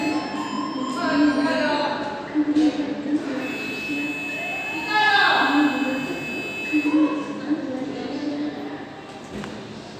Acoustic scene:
subway station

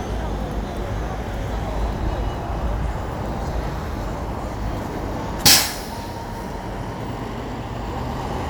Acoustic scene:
street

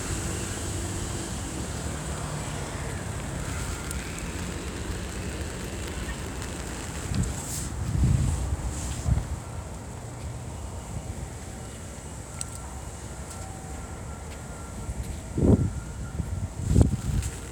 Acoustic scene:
residential area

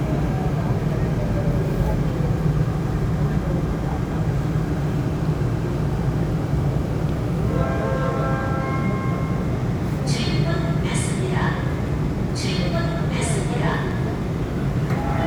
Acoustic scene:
subway train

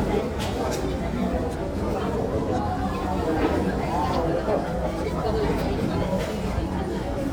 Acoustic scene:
crowded indoor space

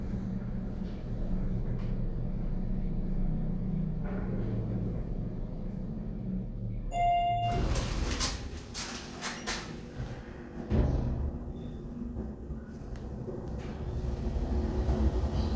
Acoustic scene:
elevator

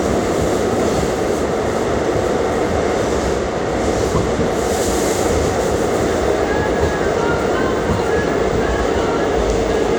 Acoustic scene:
subway train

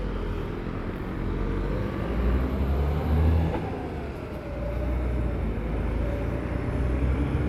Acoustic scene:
street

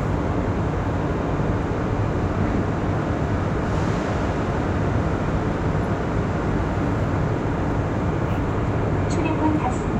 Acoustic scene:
subway train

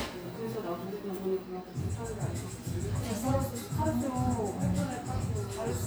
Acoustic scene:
cafe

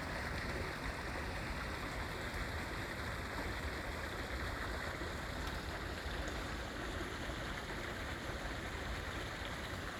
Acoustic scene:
park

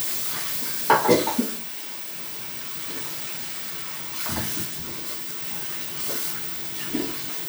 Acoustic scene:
restroom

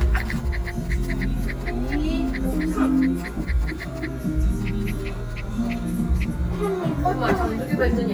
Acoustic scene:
restaurant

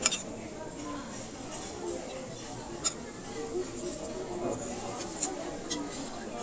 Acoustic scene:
restaurant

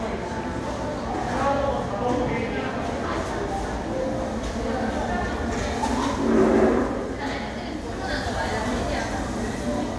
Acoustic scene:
cafe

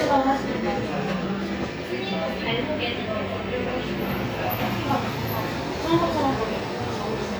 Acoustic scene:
cafe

